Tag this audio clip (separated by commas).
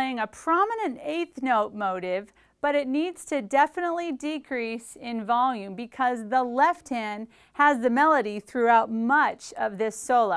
Speech